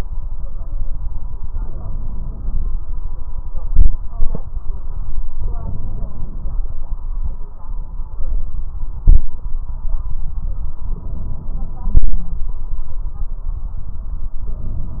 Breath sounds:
Inhalation: 1.46-2.69 s, 5.38-6.61 s, 10.89-12.12 s, 14.45-15.00 s
Exhalation: 3.73-4.43 s, 9.02-9.37 s
Wheeze: 12.00-12.51 s

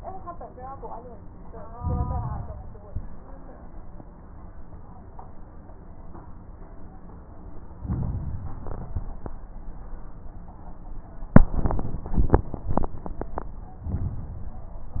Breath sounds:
Inhalation: 1.73-2.56 s, 7.75-8.89 s, 13.83-14.97 s
Exhalation: 2.77-3.34 s, 8.91-9.27 s
Crackles: 1.73-2.56 s, 2.77-3.34 s, 7.75-8.89 s, 8.91-9.27 s, 13.83-14.97 s

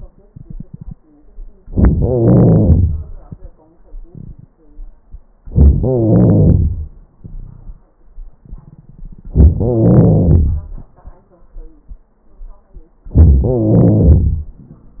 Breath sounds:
Inhalation: 1.67-1.90 s, 5.47-5.81 s, 9.27-9.60 s, 13.12-13.44 s
Exhalation: 1.93-3.31 s, 5.80-7.01 s, 9.64-10.94 s, 13.44-14.72 s
Crackles: 1.67-1.90 s, 1.93-3.31 s, 5.46-5.78 s, 5.80-6.71 s, 9.26-9.59 s, 9.64-10.67 s, 13.10-13.41 s, 13.44-14.72 s

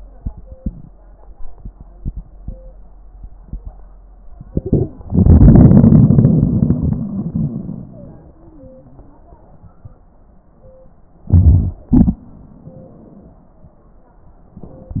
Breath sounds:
Inhalation: 4.47-4.94 s, 11.30-11.80 s
Exhalation: 5.08-9.78 s, 11.93-12.25 s
Wheeze: 8.22-9.65 s
Crackles: 11.30-11.80 s

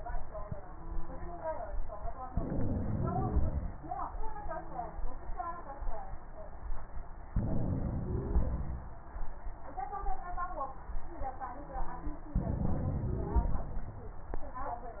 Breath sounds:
Inhalation: 2.30-3.74 s, 7.33-8.87 s, 12.39-13.62 s
Wheeze: 2.87-3.67 s, 8.00-8.62 s, 12.98-13.60 s

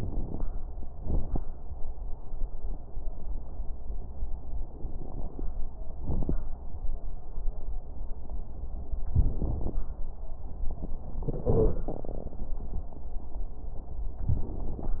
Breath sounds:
Inhalation: 0.00-0.42 s
Exhalation: 0.98-1.40 s
Crackles: 0.00-0.42 s, 0.98-1.40 s

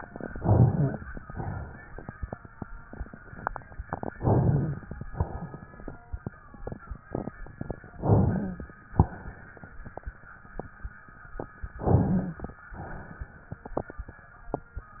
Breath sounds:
Inhalation: 0.32-0.99 s, 4.16-4.82 s, 8.01-8.67 s, 11.80-12.47 s
Exhalation: 1.25-1.92 s, 5.10-5.77 s, 8.97-9.64 s, 12.79-13.45 s
Rhonchi: 0.32-0.99 s, 4.16-4.82 s, 8.01-8.67 s, 11.80-12.47 s

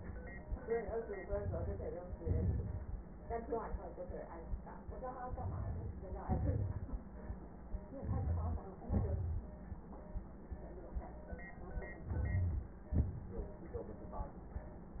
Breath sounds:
Inhalation: 1.16-2.16 s, 5.11-6.21 s, 7.88-8.78 s, 11.97-12.90 s
Exhalation: 2.18-3.21 s, 6.19-7.08 s, 8.80-9.61 s, 12.90-13.95 s
Wheeze: 7.94-8.66 s
Crackles: 1.16-2.16 s, 5.11-6.15 s, 6.19-7.08 s, 11.97-12.90 s

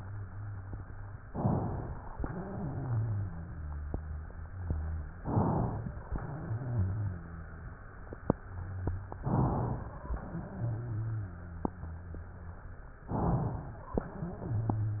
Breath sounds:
Inhalation: 1.21-2.11 s, 5.16-6.03 s, 9.18-10.04 s, 13.07-13.96 s
Exhalation: 2.17-5.14 s, 6.10-9.14 s, 10.16-12.83 s, 14.03-15.00 s
Wheeze: 2.17-5.14 s, 6.10-9.14 s, 10.16-12.83 s, 14.03-15.00 s

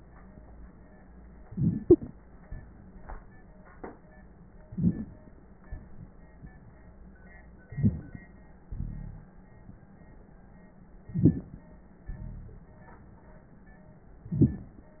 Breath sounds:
Inhalation: 1.46-2.11 s, 4.71-5.35 s, 7.71-8.27 s, 11.06-11.63 s, 14.23-14.80 s
Exhalation: 2.41-3.57 s, 5.67-6.98 s, 8.71-9.34 s, 12.11-12.73 s
Wheeze: 1.89-1.98 s
Rhonchi: 8.71-9.34 s, 12.11-12.73 s

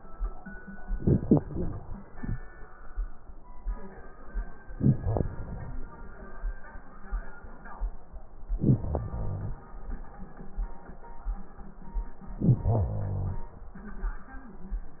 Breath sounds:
Inhalation: 0.83-2.38 s, 4.74-6.07 s, 8.41-9.74 s, 12.25-13.58 s
Crackles: 0.83-2.38 s, 4.74-6.07 s, 8.41-9.74 s

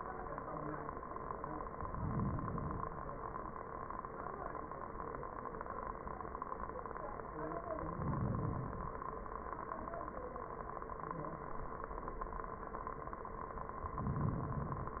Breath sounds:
Inhalation: 1.72-2.94 s, 7.84-9.07 s, 13.96-15.00 s

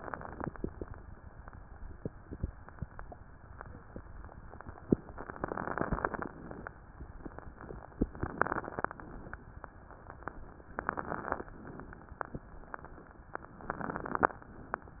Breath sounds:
Inhalation: 5.16-6.29 s, 8.13-8.96 s, 10.75-11.53 s, 13.64-14.42 s
Exhalation: 6.34-6.80 s, 8.94-9.70 s, 11.50-12.64 s
Crackles: 5.16-6.29 s, 8.13-8.96 s, 10.75-11.53 s, 13.64-14.42 s

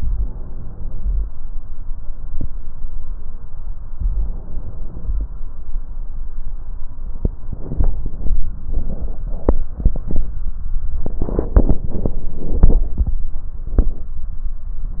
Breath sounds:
Inhalation: 0.00-1.26 s, 3.96-5.22 s

